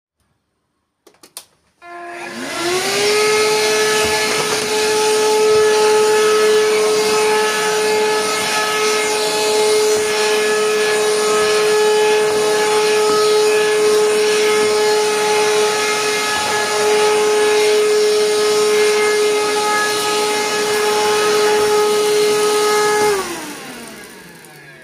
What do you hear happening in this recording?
I turned on vacuum cleaner, and I walked while vacuuming